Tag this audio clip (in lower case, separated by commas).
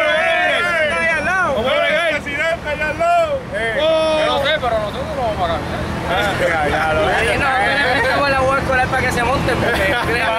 speech, vehicle